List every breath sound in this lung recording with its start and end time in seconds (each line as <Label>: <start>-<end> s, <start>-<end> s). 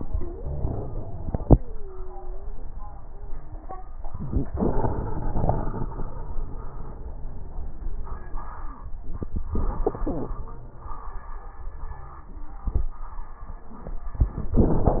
Exhalation: 0.00-2.62 s
Wheeze: 0.00-2.62 s